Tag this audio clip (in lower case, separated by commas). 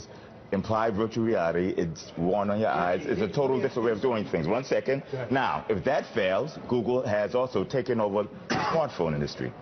speech